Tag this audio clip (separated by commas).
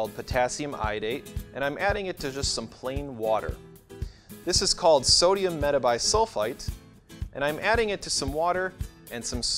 Speech, Music